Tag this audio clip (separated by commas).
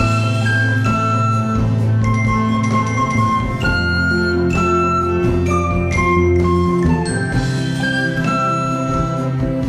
Flute, Wind instrument